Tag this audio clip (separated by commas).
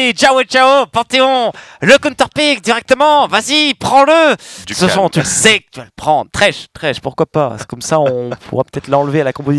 Speech